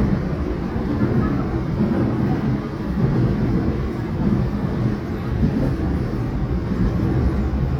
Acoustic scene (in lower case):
subway train